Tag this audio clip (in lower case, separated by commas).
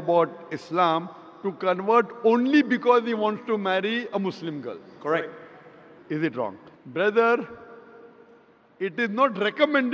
speech